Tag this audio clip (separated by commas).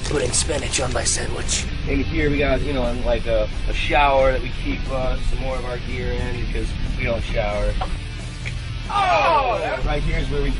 Music, Speech